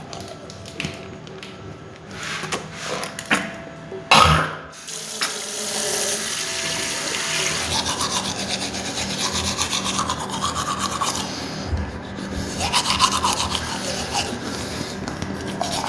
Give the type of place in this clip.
restroom